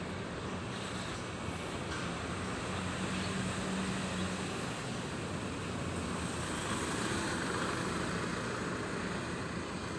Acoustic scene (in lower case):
residential area